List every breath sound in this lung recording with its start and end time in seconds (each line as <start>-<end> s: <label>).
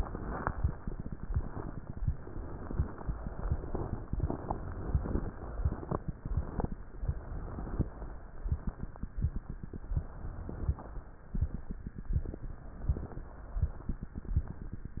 0.00-0.87 s: inhalation
1.02-1.97 s: exhalation
2.02-3.05 s: inhalation
3.08-4.11 s: exhalation
4.16-5.19 s: inhalation
5.37-6.67 s: exhalation
7.01-8.05 s: inhalation
9.99-11.03 s: inhalation
12.88-13.90 s: inhalation
12.88-13.92 s: inhalation